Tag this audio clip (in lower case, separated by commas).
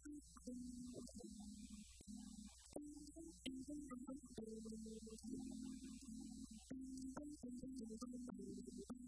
musical instrument, plucked string instrument, guitar, music